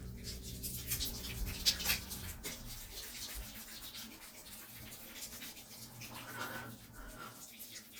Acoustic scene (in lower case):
restroom